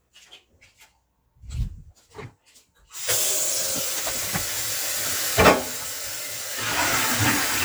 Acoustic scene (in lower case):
kitchen